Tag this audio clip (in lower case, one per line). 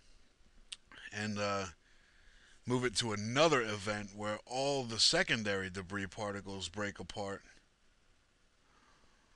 speech